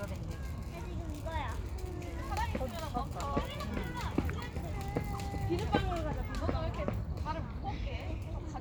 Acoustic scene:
residential area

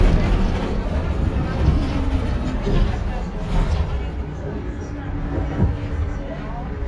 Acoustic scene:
bus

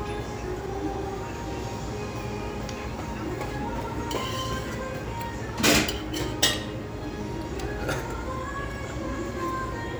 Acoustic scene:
restaurant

